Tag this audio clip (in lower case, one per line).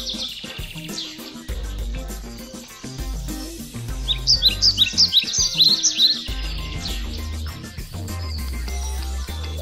music
animal